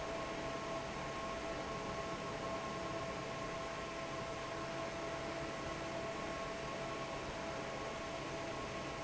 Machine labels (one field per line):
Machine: fan